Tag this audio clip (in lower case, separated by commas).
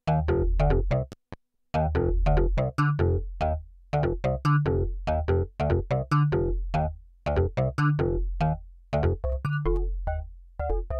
keyboard (musical), electronic music, music, synthesizer, musical instrument